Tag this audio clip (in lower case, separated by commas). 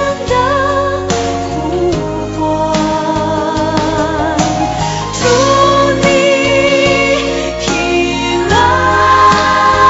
singing, music